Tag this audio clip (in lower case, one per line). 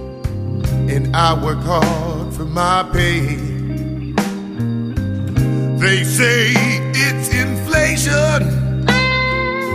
music